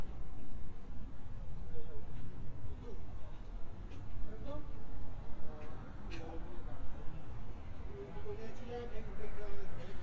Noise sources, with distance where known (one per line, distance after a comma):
person or small group talking